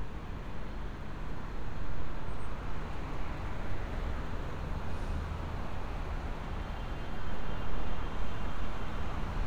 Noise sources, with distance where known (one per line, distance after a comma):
medium-sounding engine
car horn, far